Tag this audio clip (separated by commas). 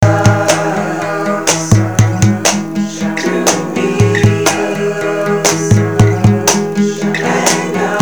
Music, Human voice, Guitar, Musical instrument, Plucked string instrument, Acoustic guitar, Percussion